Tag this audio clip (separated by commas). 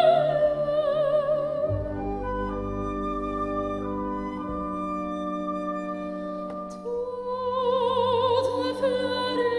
Music